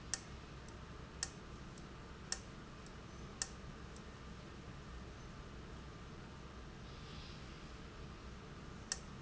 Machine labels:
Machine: valve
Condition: abnormal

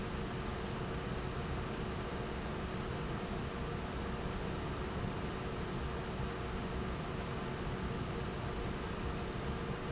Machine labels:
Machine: fan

